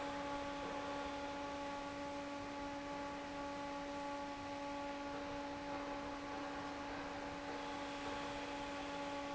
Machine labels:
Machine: fan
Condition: normal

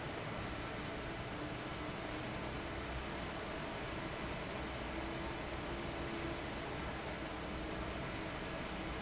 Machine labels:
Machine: fan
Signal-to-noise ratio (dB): 0 dB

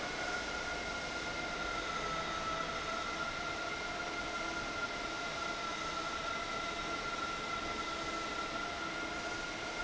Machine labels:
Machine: fan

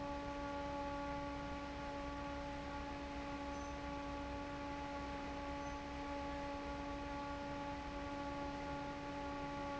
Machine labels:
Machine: fan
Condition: normal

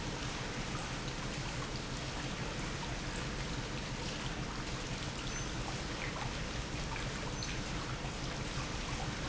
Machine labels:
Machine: pump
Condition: normal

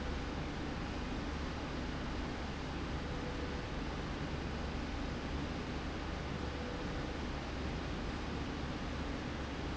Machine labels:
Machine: slide rail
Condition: normal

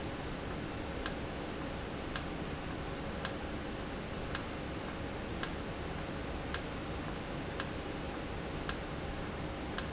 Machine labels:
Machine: valve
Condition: normal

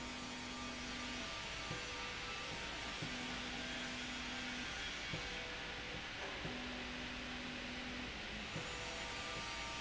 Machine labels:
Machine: slide rail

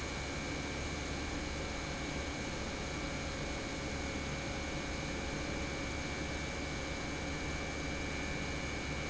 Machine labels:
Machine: pump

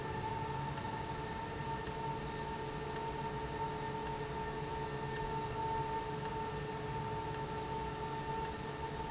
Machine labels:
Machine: valve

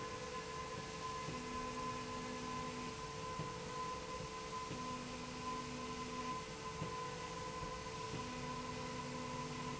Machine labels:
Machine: slide rail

